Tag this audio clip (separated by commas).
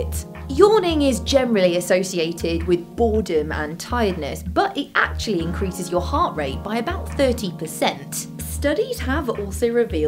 Speech, Music